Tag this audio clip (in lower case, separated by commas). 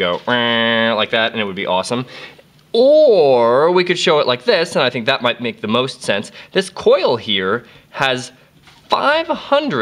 speech